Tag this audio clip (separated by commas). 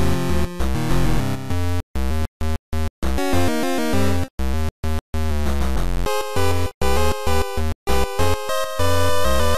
Blues, Rhythm and blues, Music